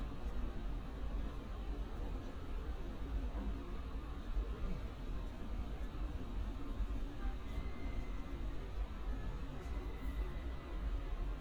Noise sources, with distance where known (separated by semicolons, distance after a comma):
background noise